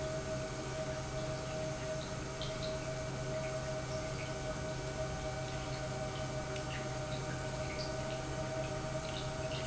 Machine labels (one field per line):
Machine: pump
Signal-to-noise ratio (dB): -6 dB